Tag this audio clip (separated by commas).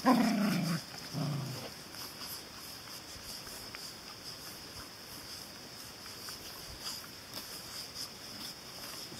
Dog, Animal, Domestic animals